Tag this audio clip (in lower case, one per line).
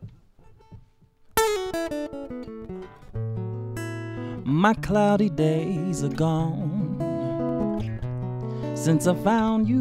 music